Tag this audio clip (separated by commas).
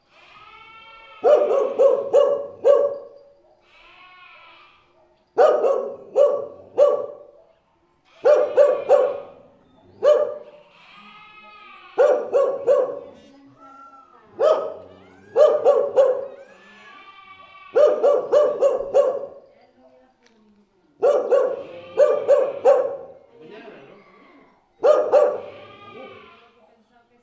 Dog, livestock, Animal, Bark, Domestic animals